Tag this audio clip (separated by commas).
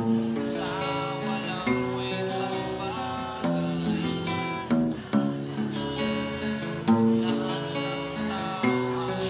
Music, Strum, Guitar, Musical instrument, Plucked string instrument